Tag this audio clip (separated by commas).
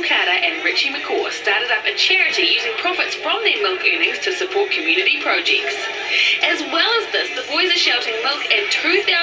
Speech